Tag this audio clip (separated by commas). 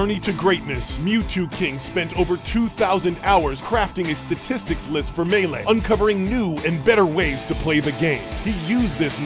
Music, Speech